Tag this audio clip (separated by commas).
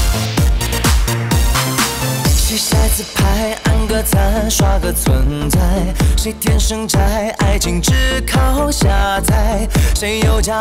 Music, Exciting music